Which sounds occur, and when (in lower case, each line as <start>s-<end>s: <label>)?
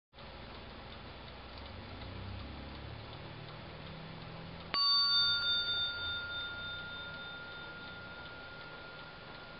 0.1s-9.5s: background noise
0.1s-9.5s: tick-tock
4.7s-9.5s: bell